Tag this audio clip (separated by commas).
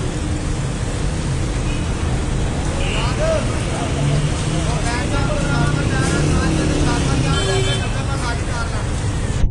outside, urban or man-made, Speech